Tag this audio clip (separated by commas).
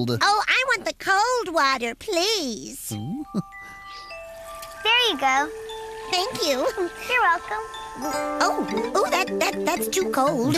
kid speaking, Speech, Music, inside a large room or hall